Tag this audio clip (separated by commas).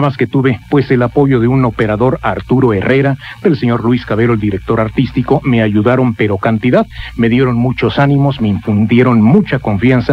Speech